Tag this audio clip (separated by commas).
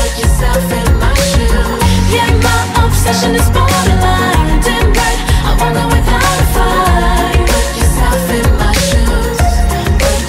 Music, Pop music